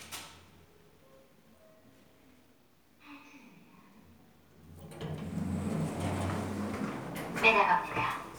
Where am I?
in an elevator